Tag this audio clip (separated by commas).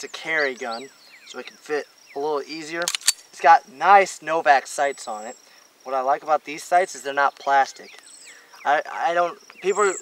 outside, rural or natural, Insect, Speech